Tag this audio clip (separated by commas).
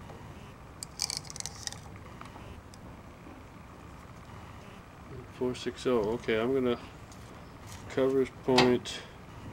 Speech, inside a small room